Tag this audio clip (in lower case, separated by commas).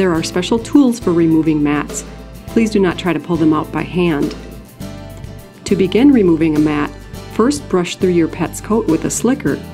music, speech